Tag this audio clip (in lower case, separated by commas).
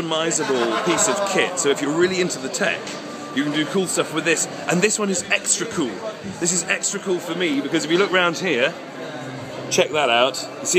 music, speech